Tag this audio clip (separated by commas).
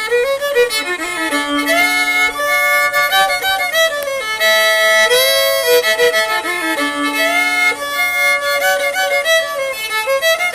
fiddle, Music, Musical instrument